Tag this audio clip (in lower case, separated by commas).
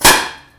explosion, fireworks